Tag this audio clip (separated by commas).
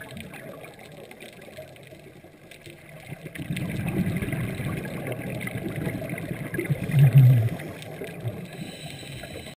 Gurgling